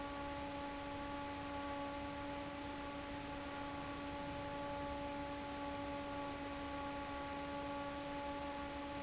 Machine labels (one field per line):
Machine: fan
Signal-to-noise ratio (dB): 6 dB